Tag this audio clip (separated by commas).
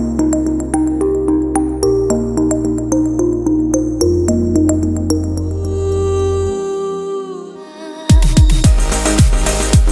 Music